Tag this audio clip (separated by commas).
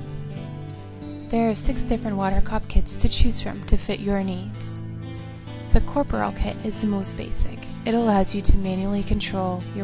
Speech, Music